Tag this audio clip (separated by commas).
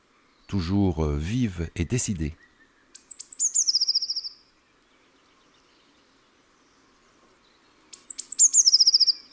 mynah bird singing